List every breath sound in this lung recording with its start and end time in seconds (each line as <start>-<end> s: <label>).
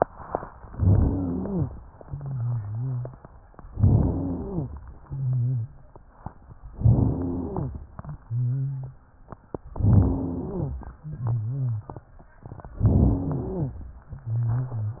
0.67-1.75 s: inhalation
0.67-1.75 s: wheeze
2.01-3.18 s: wheeze
3.72-4.80 s: inhalation
3.72-4.80 s: wheeze
4.95-5.74 s: wheeze
6.75-7.84 s: inhalation
6.75-7.84 s: wheeze
8.22-9.00 s: wheeze
9.81-10.89 s: inhalation
9.81-10.89 s: wheeze
11.04-12.04 s: wheeze
12.83-13.79 s: inhalation
12.83-13.79 s: wheeze
14.12-15.00 s: wheeze